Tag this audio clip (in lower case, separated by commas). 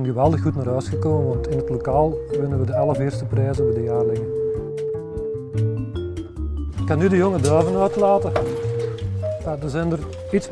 bird, speech, music